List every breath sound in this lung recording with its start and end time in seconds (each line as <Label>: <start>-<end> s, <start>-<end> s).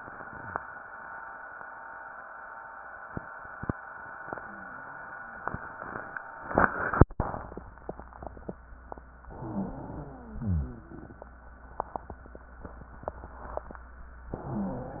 Inhalation: 9.22-10.34 s, 14.38-15.00 s
Exhalation: 10.34-11.16 s
Wheeze: 9.20-10.28 s, 10.34-11.16 s, 14.38-15.00 s